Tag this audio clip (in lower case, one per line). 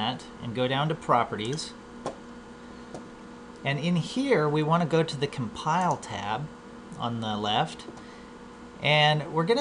computer keyboard
typing